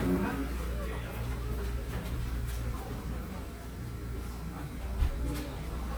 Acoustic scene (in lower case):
cafe